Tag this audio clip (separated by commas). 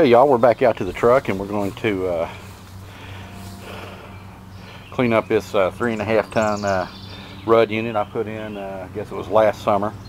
Speech